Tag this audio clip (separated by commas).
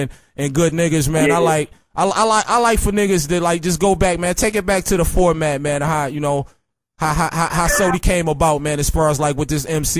Speech